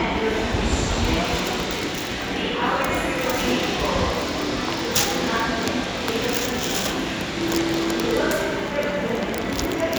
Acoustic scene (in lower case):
subway station